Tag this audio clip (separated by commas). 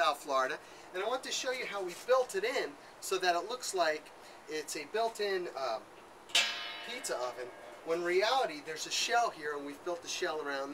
Speech